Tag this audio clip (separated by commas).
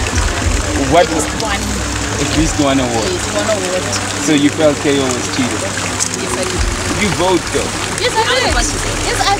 Water, Music, Speech, outside, urban or man-made